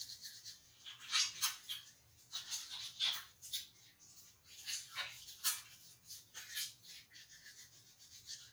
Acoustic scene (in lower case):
restroom